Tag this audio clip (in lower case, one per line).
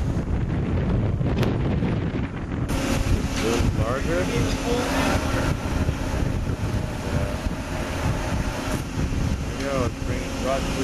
surf
wind noise (microphone)
ocean
wind